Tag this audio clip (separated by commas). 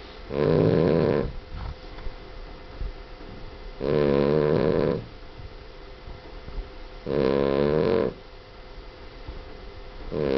inside a small room, Snoring, Animal, Dog, Domestic animals